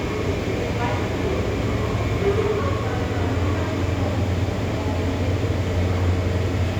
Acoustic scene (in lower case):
subway station